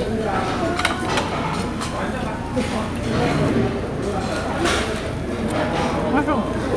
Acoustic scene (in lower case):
crowded indoor space